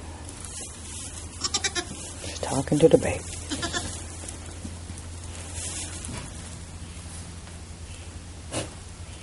Sheep bleating, then woman talking